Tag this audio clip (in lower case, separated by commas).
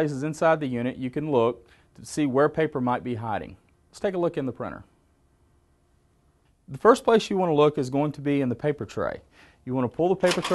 speech